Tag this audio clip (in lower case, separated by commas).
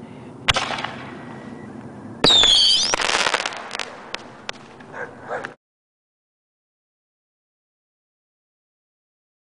outside, urban or man-made